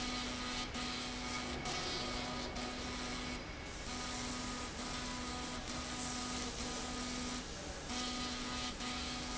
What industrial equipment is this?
slide rail